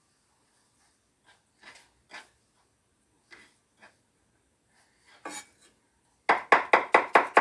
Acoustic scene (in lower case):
kitchen